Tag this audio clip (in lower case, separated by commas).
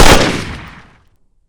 explosion, gunfire